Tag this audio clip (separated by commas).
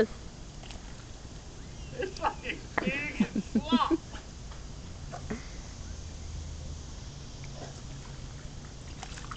Speech